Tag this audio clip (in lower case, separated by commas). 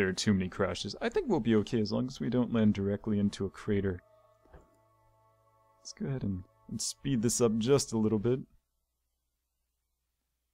speech